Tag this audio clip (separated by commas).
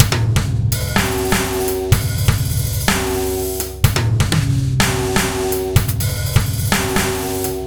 Musical instrument, Bass drum, Music, Drum kit, Drum, Snare drum, Percussion